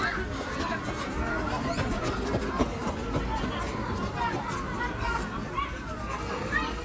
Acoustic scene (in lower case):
park